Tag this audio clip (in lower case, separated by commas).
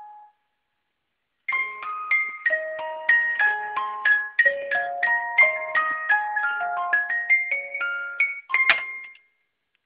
alarm, clock, alarm clock